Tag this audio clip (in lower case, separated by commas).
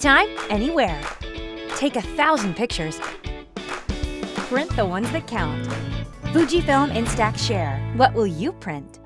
speech, music